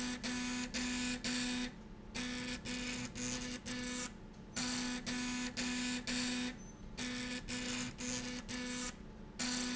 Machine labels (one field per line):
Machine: slide rail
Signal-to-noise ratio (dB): 6 dB